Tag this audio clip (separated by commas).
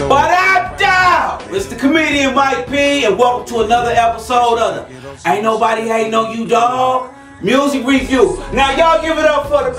Speech, Music